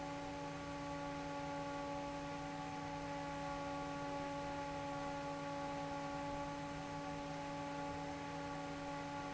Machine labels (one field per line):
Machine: fan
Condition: normal